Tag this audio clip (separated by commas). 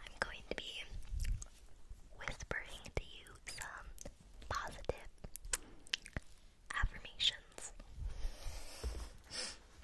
people whispering